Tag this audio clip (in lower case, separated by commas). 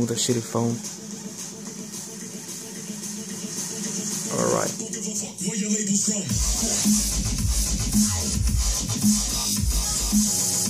sound effect, speech, music